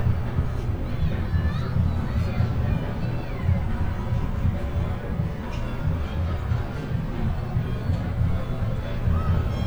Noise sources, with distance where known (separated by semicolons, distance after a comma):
unidentified impact machinery; person or small group shouting